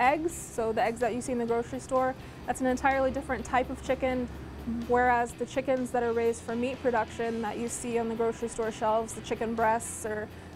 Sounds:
music, speech

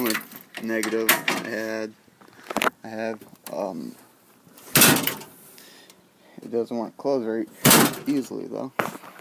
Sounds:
speech

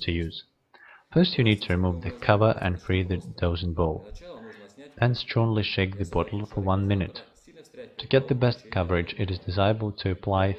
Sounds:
speech

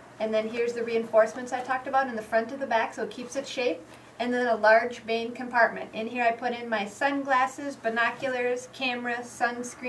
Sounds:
speech

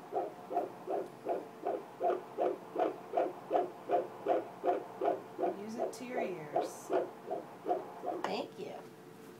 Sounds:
speech

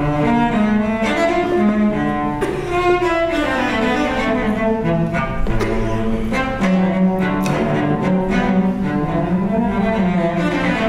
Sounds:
cello, bowed string instrument, playing cello, double bass

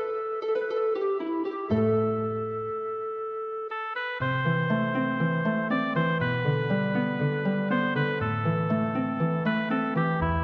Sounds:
music, theme music

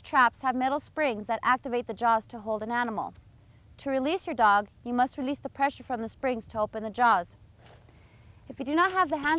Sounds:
speech

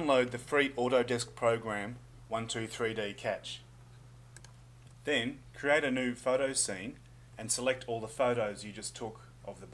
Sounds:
speech

